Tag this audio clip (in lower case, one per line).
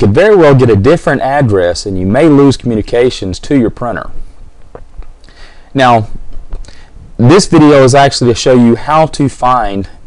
speech